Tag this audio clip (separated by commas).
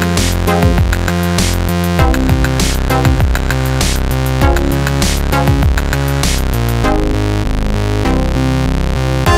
Music